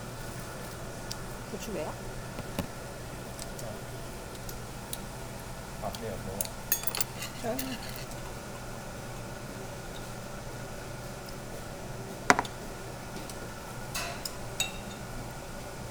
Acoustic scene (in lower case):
restaurant